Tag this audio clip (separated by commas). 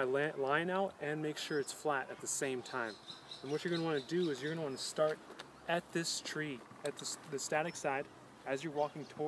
Speech